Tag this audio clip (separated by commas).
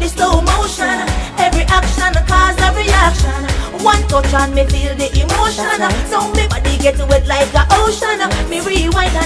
Music, Music of Africa